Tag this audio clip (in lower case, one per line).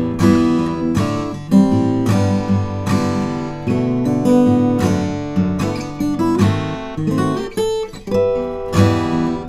music
musical instrument
strum
plucked string instrument
guitar